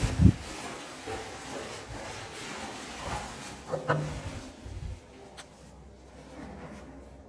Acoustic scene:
elevator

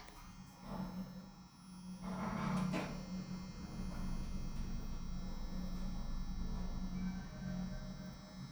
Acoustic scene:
elevator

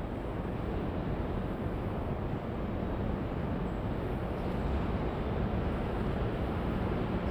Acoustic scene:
subway station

